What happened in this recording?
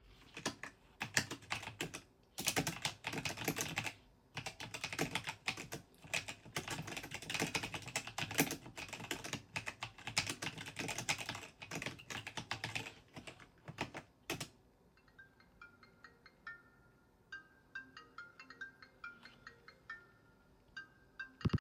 I was typing some text on my keyboard and then my phone started to ring.